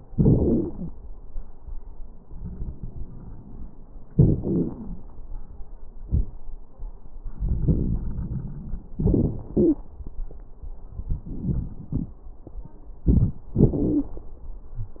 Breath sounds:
4.11-4.36 s: inhalation
4.11-4.36 s: crackles
4.40-5.04 s: exhalation
4.40-5.04 s: crackles
7.27-8.76 s: wheeze
8.96-9.43 s: inhalation
8.96-9.43 s: crackles
9.51-9.78 s: exhalation
9.52-9.81 s: wheeze
13.07-13.44 s: inhalation
13.07-13.44 s: crackles
13.54-14.16 s: exhalation
13.54-14.16 s: crackles

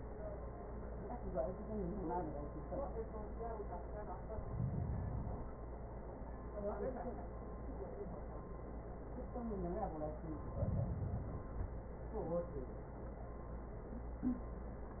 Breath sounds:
4.14-5.64 s: inhalation
10.32-11.82 s: inhalation

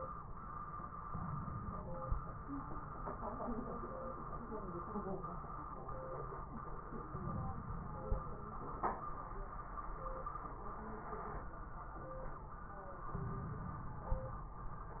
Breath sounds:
1.10-2.09 s: inhalation
7.10-8.43 s: inhalation
13.12-14.54 s: inhalation

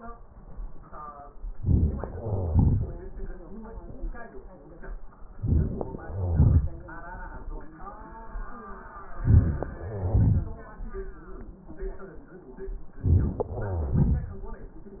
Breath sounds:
1.50-2.17 s: inhalation
2.15-3.56 s: exhalation
5.32-5.99 s: inhalation
5.32-5.99 s: crackles
6.01-6.88 s: exhalation
9.09-9.77 s: inhalation
9.09-9.77 s: crackles
9.79-11.36 s: exhalation
12.94-13.51 s: inhalation
12.94-13.51 s: crackles
13.53-14.93 s: exhalation

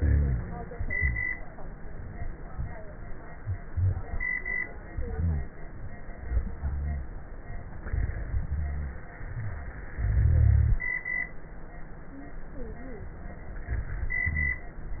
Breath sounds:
0.00-0.53 s: exhalation
0.00-0.53 s: rhonchi
0.93-1.27 s: rhonchi
3.70-4.23 s: inhalation
3.70-4.23 s: rhonchi
5.07-5.52 s: exhalation
5.07-5.52 s: rhonchi
6.60-7.06 s: rhonchi
8.50-8.96 s: rhonchi
9.33-9.79 s: inhalation
9.33-9.79 s: wheeze
9.98-10.85 s: exhalation
9.98-10.85 s: rhonchi
13.76-14.21 s: inhalation
14.21-14.67 s: exhalation
14.21-14.67 s: rhonchi

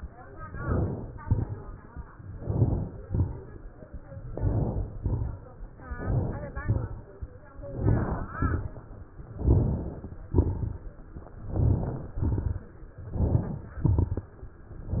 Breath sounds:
0.44-1.19 s: inhalation
0.44-1.19 s: crackles
1.20-1.95 s: exhalation
1.20-1.95 s: crackles
2.31-3.06 s: inhalation
2.31-3.06 s: crackles
3.07-3.82 s: exhalation
3.07-3.82 s: crackles
4.19-4.95 s: inhalation
4.19-4.95 s: crackles
4.95-5.71 s: exhalation
4.95-5.71 s: crackles
5.85-6.60 s: inhalation
5.85-6.60 s: crackles
6.63-7.38 s: exhalation
6.63-7.38 s: crackles
7.57-8.36 s: crackles
7.59-8.38 s: inhalation
8.37-9.16 s: exhalation
8.37-9.16 s: crackles
9.35-10.13 s: inhalation
9.35-10.13 s: crackles
10.28-11.07 s: exhalation
10.28-11.07 s: crackles
11.33-12.12 s: crackles
11.37-12.15 s: inhalation
12.15-12.93 s: exhalation
12.15-12.93 s: crackles
12.98-13.71 s: crackles
13.02-13.75 s: inhalation
13.75-14.48 s: exhalation
13.75-14.48 s: crackles
14.81-15.00 s: inhalation
14.81-15.00 s: crackles

